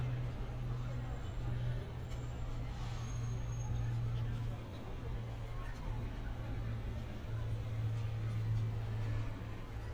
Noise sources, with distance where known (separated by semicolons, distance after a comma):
person or small group talking